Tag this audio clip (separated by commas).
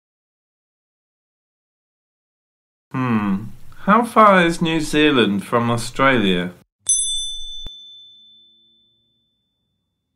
Speech